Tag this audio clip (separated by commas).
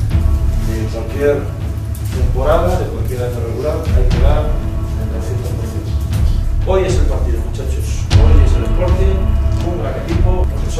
Speech